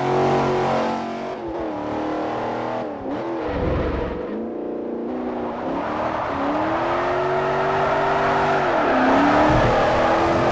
An engine revving and skidding